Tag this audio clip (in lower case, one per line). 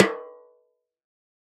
percussion
musical instrument
drum
snare drum
music